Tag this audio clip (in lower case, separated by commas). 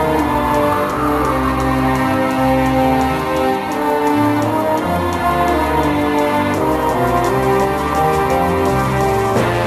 music